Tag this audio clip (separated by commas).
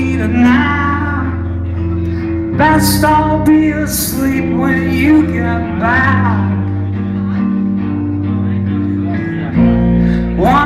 Music, Speech